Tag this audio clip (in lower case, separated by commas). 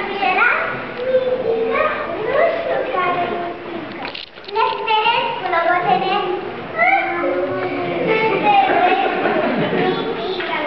speech